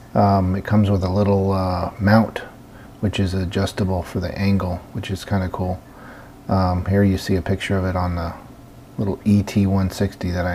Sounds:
Speech

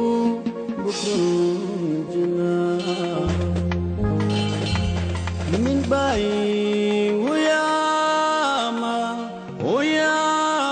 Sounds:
Music

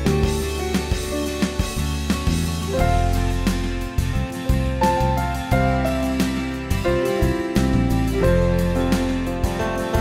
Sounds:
Music

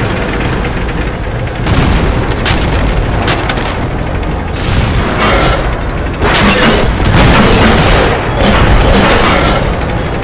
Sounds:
Boom

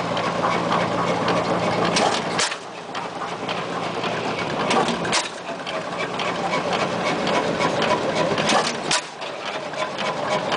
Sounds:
Engine, Idling

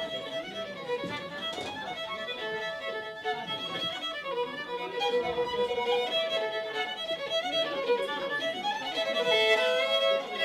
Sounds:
Bowed string instrument, Music, fiddle, Musical instrument

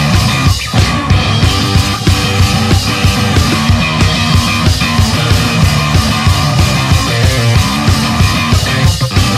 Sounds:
Music

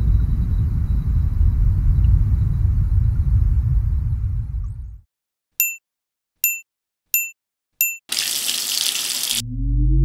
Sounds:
Silence

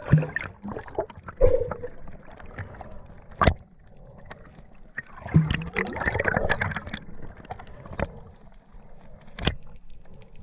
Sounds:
underwater bubbling

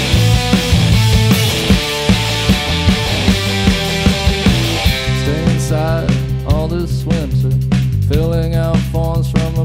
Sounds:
Singing

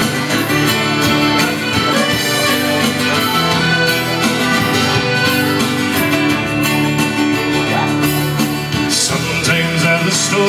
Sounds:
Music, Accordion, Singing

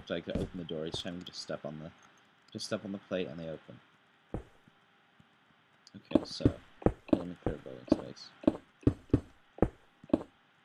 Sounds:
Speech

